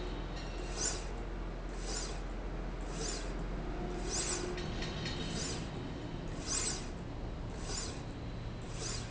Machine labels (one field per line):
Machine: slide rail